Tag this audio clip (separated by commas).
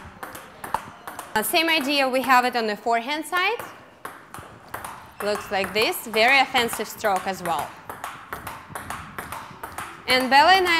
playing table tennis